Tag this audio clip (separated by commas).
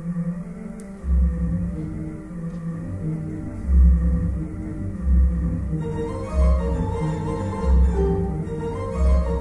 Keyboard (musical), Musical instrument, Music, Organ